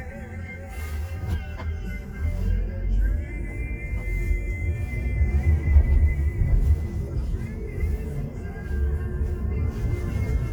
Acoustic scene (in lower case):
car